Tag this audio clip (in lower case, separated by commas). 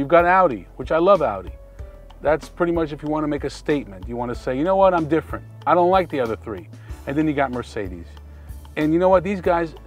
speech, music